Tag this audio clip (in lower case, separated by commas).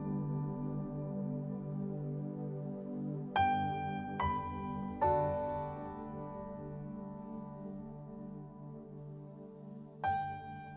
music, new-age music